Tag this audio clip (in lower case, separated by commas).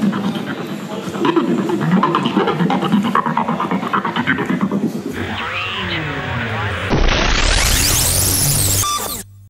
sampler, music